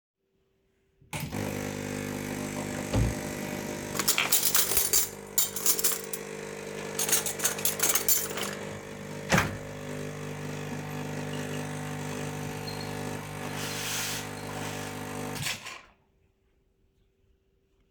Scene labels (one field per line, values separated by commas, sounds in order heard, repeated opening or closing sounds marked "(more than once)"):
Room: kitchen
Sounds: coffee machine, wardrobe or drawer (more than once), cutlery and dishes